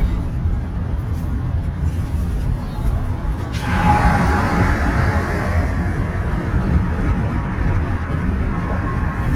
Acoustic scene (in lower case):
car